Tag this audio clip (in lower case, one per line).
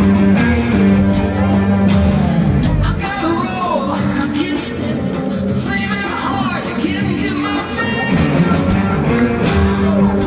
music